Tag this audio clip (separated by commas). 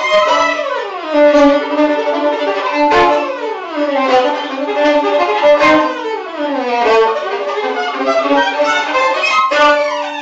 Music, Musical instrument, fiddle